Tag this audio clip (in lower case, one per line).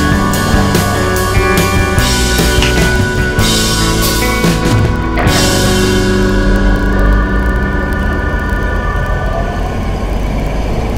car
music
vehicle